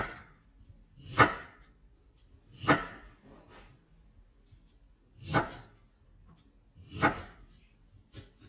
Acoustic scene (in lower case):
kitchen